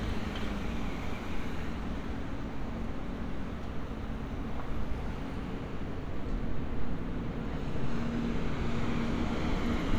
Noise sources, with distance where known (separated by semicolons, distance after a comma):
large-sounding engine, near